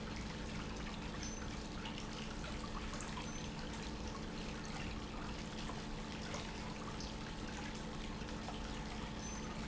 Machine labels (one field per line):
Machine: pump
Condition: normal